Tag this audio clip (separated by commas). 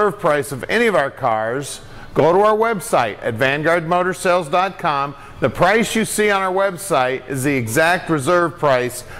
Speech